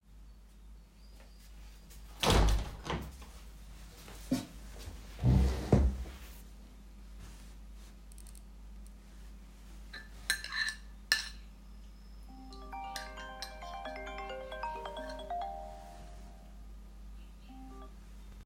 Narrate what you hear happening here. I closed the window and sat on the chair. Then started cutting the food on the plate, while doing that I received a phonecall.